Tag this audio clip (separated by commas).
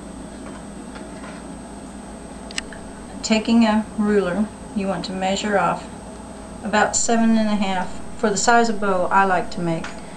Speech